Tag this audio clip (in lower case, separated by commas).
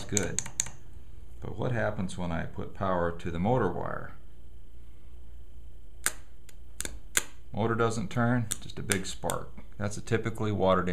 inside a small room, speech